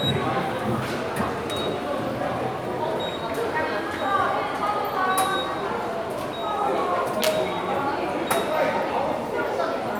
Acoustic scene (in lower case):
subway station